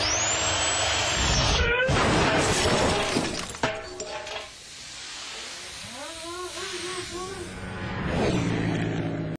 A car moves and metal crunches